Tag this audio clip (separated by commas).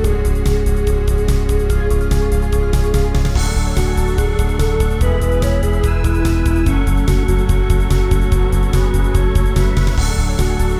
Music, House music